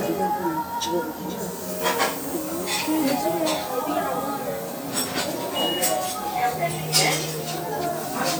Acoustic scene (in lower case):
restaurant